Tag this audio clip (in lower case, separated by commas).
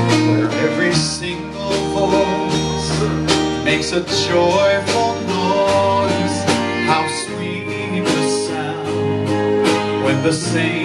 male singing, music